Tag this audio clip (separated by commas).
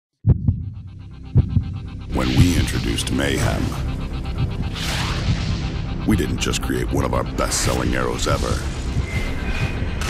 Music, Speech